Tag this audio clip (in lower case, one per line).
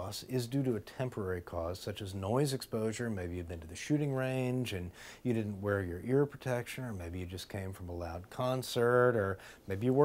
speech